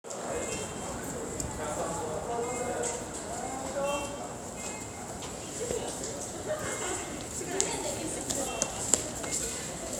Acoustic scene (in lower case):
subway station